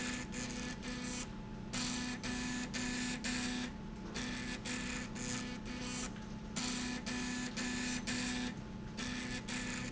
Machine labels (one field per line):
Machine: slide rail